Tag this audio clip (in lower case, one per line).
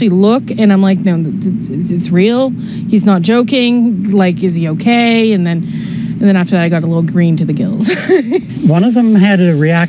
speech